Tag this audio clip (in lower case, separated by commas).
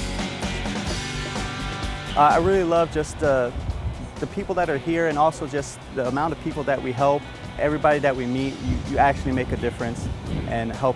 music, speech